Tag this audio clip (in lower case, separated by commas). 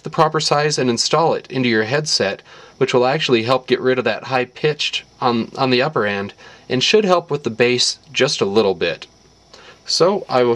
speech